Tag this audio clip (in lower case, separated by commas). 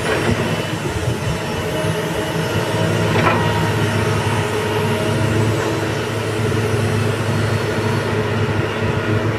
vehicle